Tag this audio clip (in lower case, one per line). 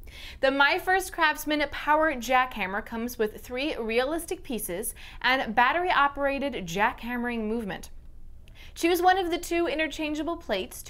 speech